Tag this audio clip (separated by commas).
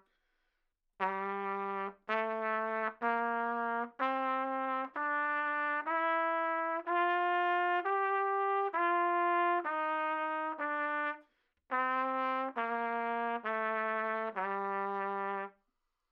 Trumpet, Brass instrument, Music, Musical instrument